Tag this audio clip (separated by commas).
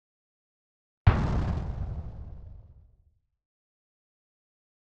Explosion